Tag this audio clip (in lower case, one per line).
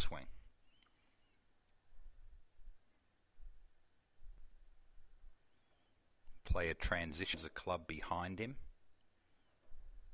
speech